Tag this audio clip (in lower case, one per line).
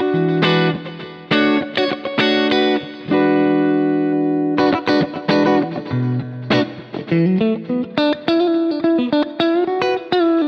music
distortion